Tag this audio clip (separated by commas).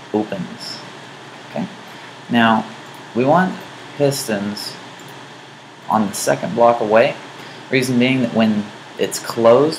Speech